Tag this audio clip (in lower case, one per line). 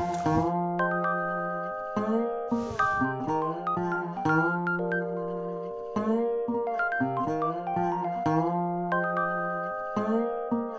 music